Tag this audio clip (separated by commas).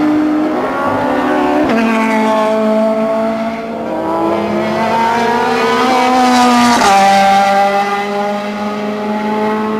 Vehicle, Race car, Car